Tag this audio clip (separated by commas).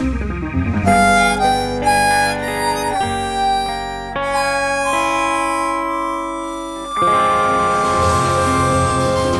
Music